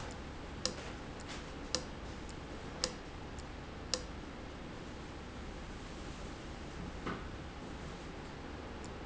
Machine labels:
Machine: valve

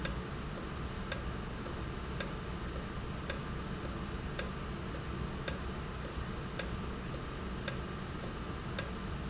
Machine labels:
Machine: valve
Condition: normal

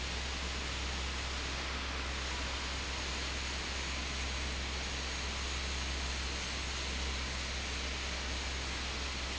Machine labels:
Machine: fan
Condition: abnormal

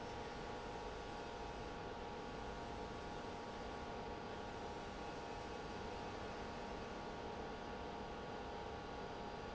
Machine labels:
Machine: pump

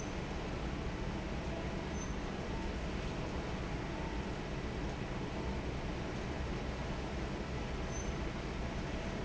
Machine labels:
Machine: fan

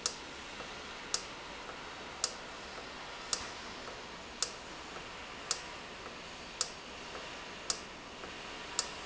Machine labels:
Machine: valve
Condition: normal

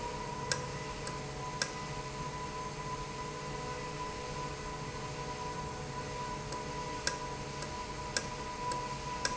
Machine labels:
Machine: valve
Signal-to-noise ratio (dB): -6 dB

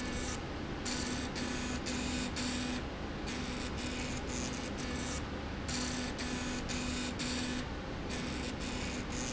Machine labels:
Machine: slide rail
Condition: abnormal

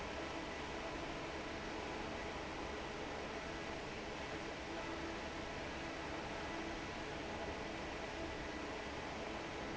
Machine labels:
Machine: fan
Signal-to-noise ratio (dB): 6 dB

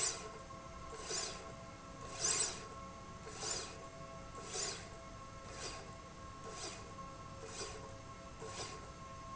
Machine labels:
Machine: slide rail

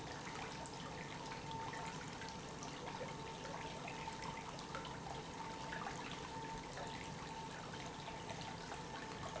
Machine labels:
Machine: pump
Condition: normal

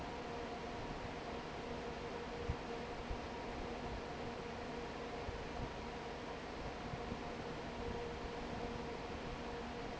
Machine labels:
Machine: fan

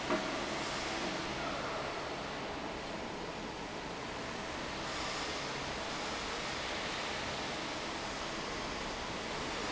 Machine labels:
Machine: fan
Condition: normal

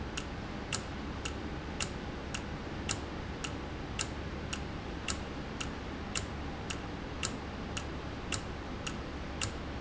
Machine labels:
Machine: valve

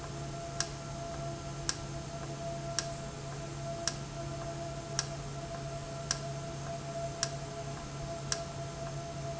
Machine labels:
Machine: valve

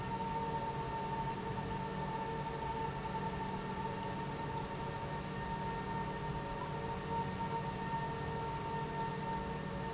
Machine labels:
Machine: pump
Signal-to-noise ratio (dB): -6 dB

